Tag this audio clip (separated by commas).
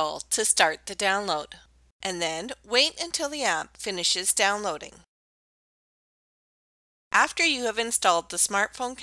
Speech